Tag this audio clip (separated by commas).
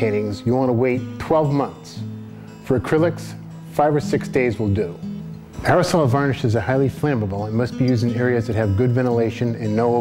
Speech, Music